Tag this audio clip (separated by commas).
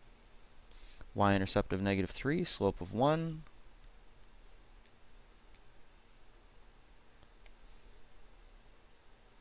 Writing, Speech